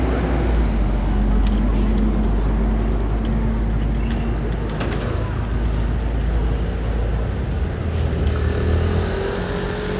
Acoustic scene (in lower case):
residential area